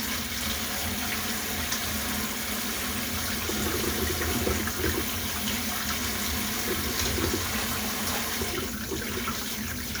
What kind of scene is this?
kitchen